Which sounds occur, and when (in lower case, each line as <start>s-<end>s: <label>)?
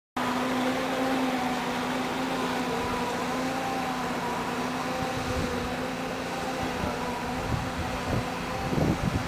0.1s-9.2s: mechanisms
0.1s-9.2s: water
0.1s-9.2s: wind
4.9s-5.7s: wind noise (microphone)
6.5s-9.2s: wind noise (microphone)